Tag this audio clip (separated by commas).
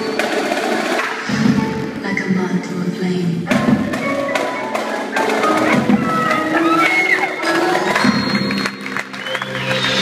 Speech, Music